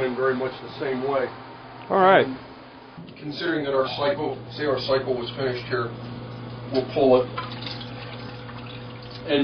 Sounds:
speech, inside a small room

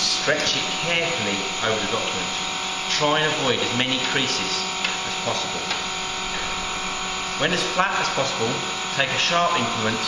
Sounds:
speech, inside a small room

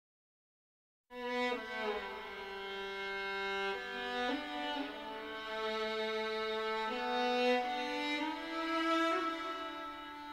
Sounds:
music, fiddle, bowed string instrument

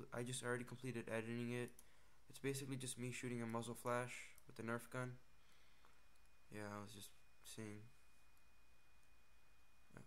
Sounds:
speech

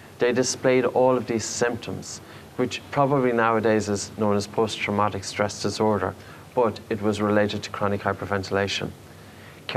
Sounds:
speech

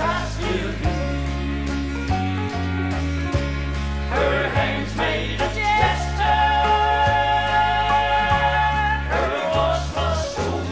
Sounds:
music, male singing

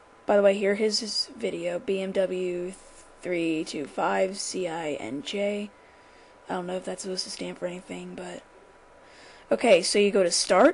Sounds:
speech

